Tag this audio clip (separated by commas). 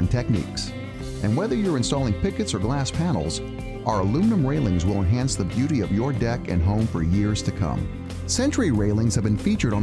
Music, Speech